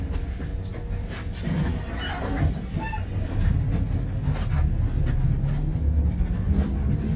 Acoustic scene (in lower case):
bus